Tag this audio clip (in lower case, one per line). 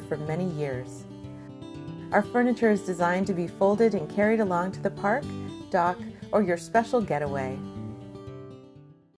music
speech